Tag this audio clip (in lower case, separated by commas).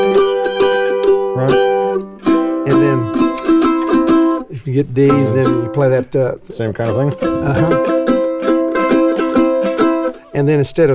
playing mandolin